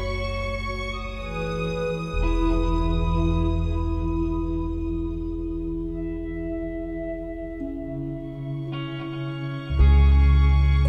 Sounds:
Music, Background music

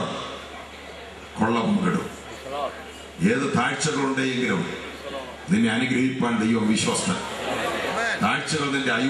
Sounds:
Speech

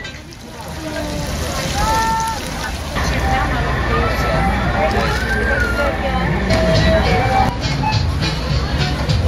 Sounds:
Speech, Music

